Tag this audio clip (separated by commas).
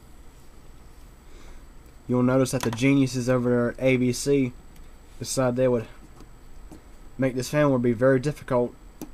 Speech